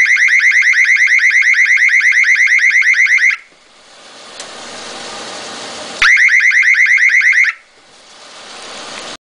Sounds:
Siren

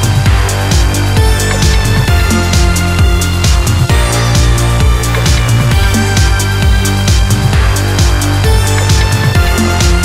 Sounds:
Music

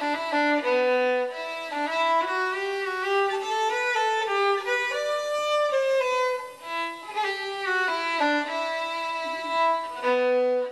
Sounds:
Musical instrument, fiddle, Music

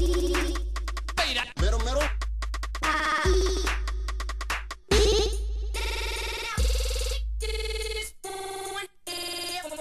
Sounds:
Music

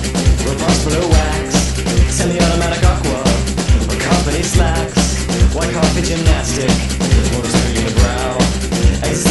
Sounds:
Music

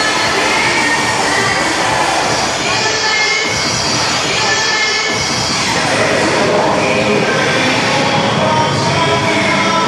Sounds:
inside a large room or hall, Music

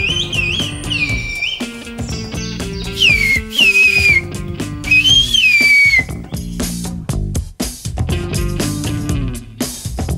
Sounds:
people whistling

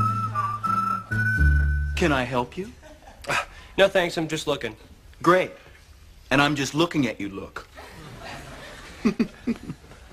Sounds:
Music, Speech

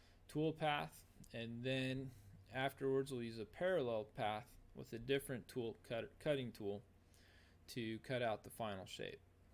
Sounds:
Speech

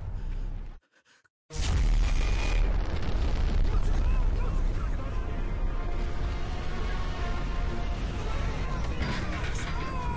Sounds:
Music, Screaming

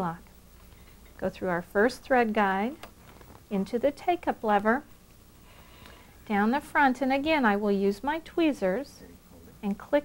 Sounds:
Speech

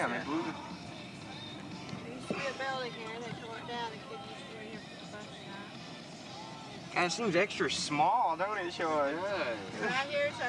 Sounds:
Vehicle, Music, Car, Speech

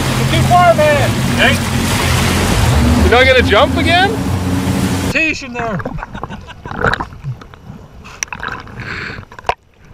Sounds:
Vehicle, outside, rural or natural, Slosh, Water vehicle, Speech

